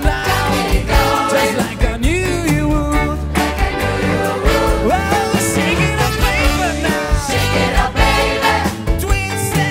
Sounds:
music

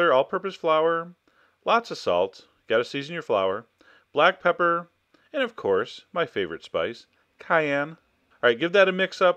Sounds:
speech

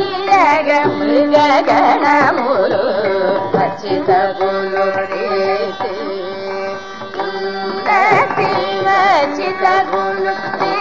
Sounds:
music
classical music
carnatic music

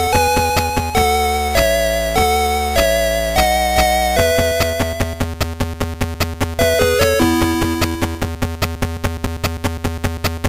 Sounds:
soundtrack music

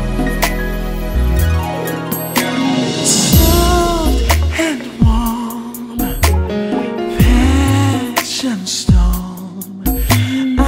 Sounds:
music

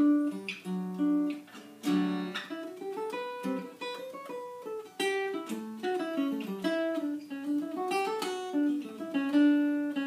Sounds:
strum
acoustic guitar
musical instrument
guitar
plucked string instrument
music

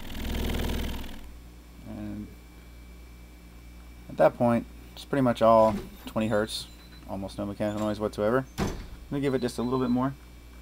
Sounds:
speech
inside a large room or hall

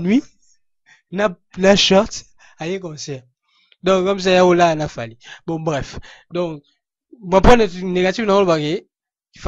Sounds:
speech

